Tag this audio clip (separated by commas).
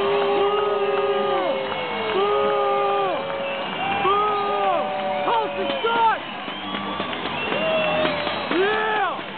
Speech